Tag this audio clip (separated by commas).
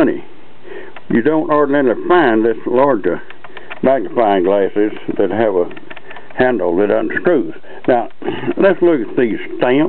Speech